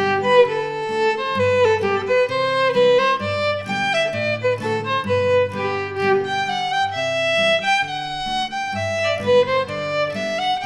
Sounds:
Musical instrument, Music

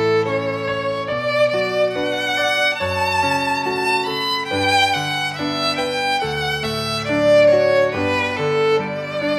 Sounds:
Violin, Musical instrument, Music

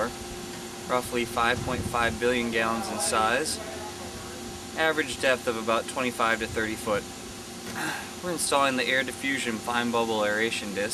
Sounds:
Speech

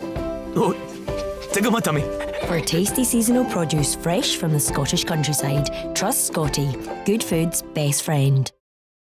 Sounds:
Animal, Speech, Music, pets

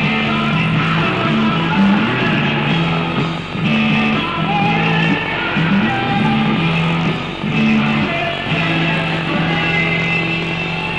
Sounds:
Rock and roll, Singing, Music, Pop music

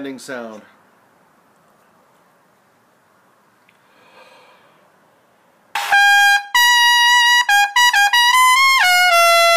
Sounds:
Brass instrument, Trumpet

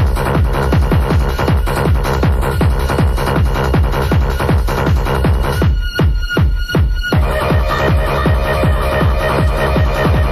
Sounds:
Techno, Music, Electronic music

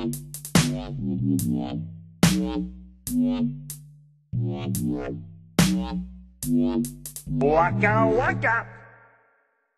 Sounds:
Electronic music, Dubstep, Music

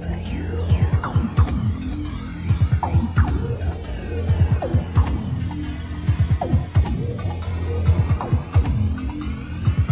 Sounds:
Music

